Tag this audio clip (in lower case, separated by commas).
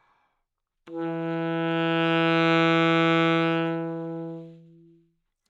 music, musical instrument, wind instrument